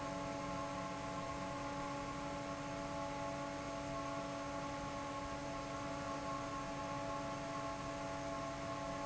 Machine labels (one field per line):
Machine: fan